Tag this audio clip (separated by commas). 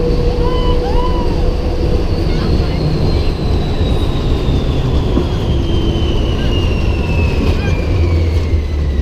Vehicle, Car